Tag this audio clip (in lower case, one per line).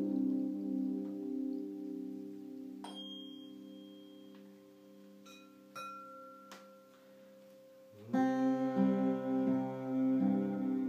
playing tuning fork